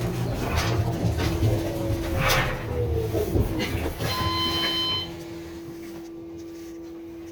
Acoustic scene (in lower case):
bus